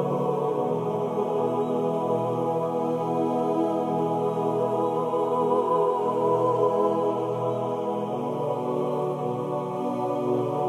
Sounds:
Choir, Chant

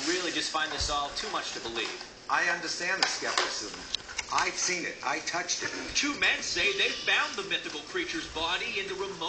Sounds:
Speech

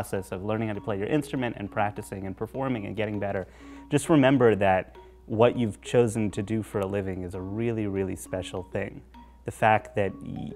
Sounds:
Mallet percussion, Glockenspiel, Marimba

